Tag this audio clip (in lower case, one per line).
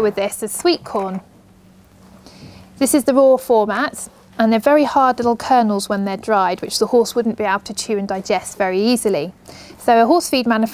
speech